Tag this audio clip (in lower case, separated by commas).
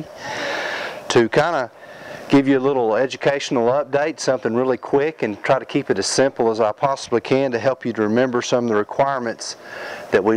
speech